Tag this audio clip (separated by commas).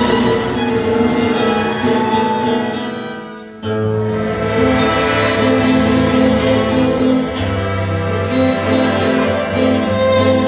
Accordion